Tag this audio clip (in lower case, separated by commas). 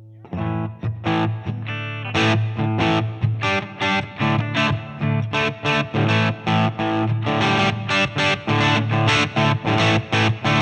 plucked string instrument, guitar, electric guitar, strum, music, musical instrument